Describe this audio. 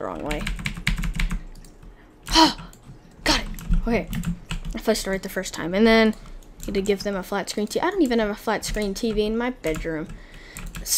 A typing noise can be heard followed by a child speaking a foreign language